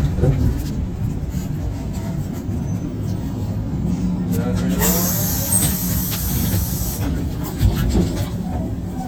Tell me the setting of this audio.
bus